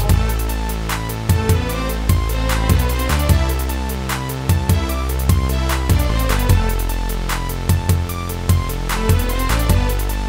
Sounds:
music

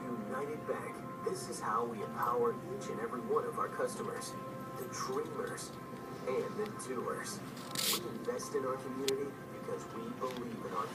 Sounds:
speech
music

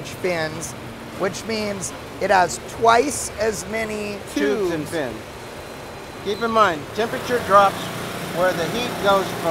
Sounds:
inside a large room or hall
speech

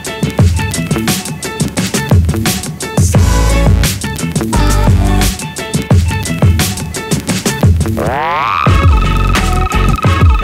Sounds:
music

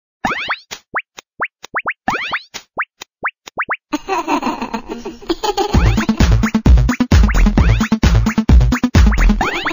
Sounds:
music
plop

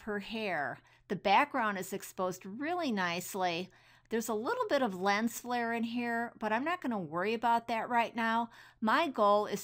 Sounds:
speech

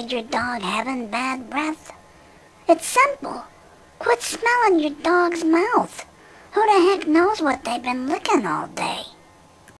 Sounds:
speech

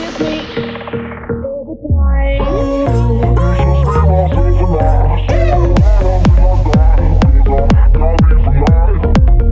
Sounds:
house music
music
electronic music
synthesizer

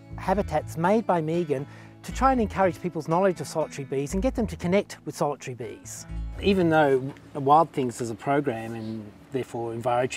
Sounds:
speech
music

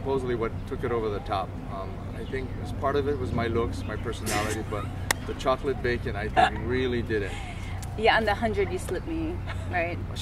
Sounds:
animal
speech

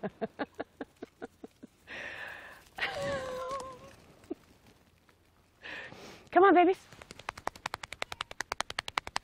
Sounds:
speech

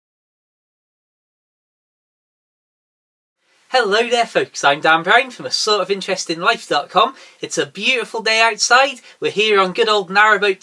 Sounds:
speech

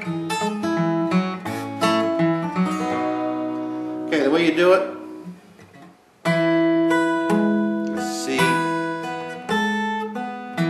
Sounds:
musical instrument
speech
plucked string instrument
acoustic guitar
guitar
strum
music

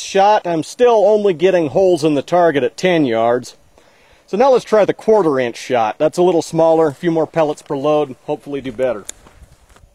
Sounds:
outside, rural or natural
speech

